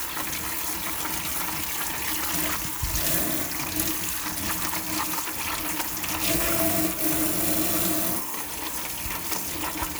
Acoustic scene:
kitchen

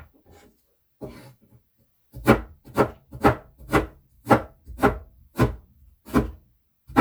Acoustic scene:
kitchen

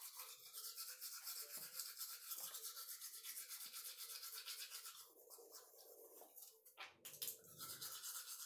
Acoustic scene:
restroom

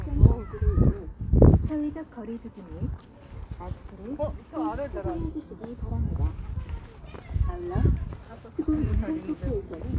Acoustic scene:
park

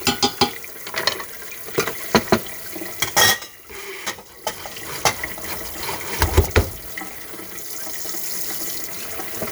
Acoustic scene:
kitchen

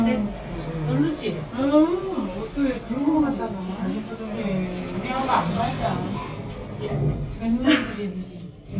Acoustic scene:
elevator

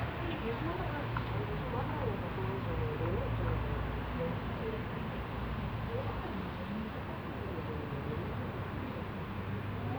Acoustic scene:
residential area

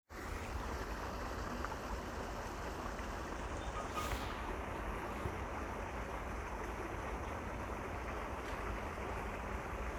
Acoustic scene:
park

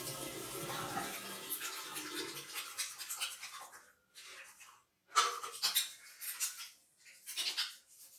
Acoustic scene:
restroom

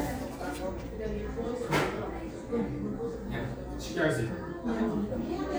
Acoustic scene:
cafe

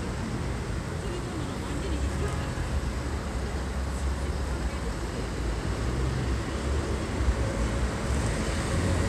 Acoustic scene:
street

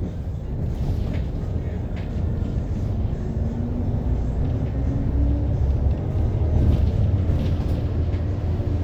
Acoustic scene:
bus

